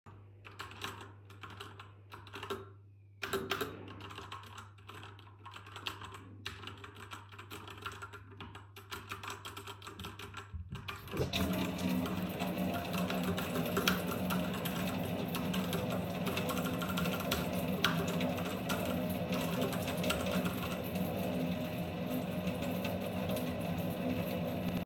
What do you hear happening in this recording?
I start typing. I turn on the water. I stop typing.